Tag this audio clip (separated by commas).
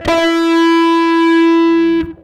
Music, Plucked string instrument, Electric guitar, Musical instrument, Guitar